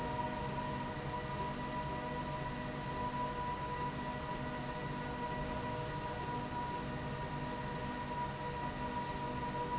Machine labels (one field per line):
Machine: slide rail